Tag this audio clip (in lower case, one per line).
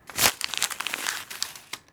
crumpling